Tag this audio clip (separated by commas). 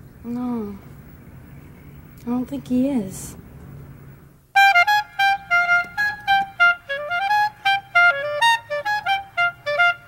playing clarinet